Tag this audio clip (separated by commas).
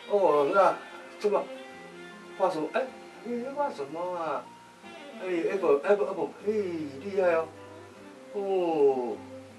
Music, Speech